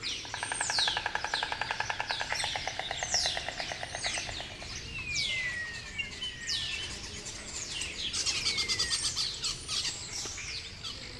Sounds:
Animal, Insect, Wild animals

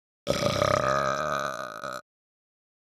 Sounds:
Burping

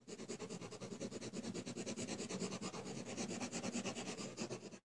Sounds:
Writing, home sounds

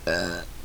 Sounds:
eructation

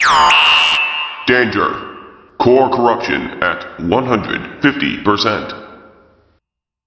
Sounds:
Alarm

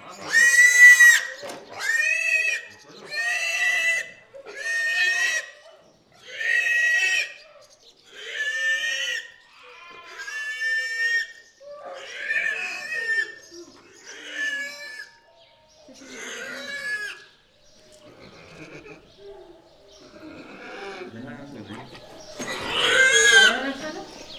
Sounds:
livestock, Animal

